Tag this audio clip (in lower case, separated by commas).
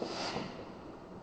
fireworks, explosion